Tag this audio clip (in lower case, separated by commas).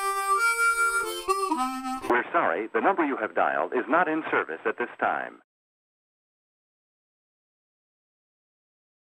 theme music, music